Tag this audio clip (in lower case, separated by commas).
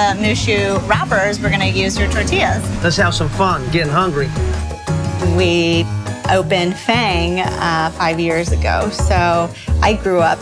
music, speech